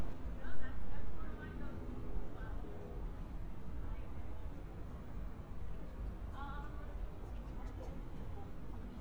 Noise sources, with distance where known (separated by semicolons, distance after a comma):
person or small group talking, far